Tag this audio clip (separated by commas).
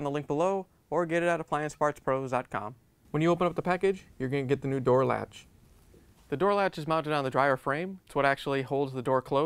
Speech